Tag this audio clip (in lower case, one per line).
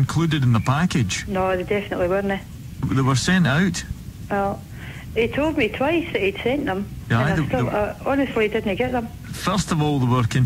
speech